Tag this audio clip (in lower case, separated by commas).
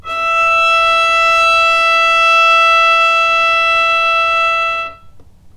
musical instrument, bowed string instrument, music